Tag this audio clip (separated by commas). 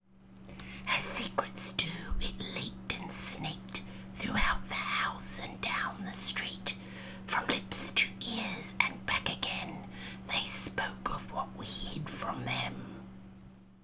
Whispering, Human voice